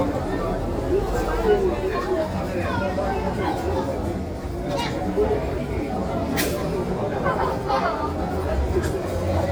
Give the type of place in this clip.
crowded indoor space